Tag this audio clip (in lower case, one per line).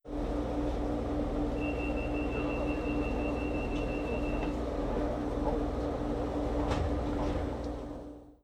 rail transport
engine
vehicle
train
alarm